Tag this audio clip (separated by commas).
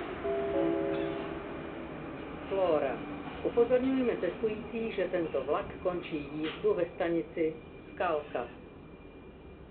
Rail transport, metro, Vehicle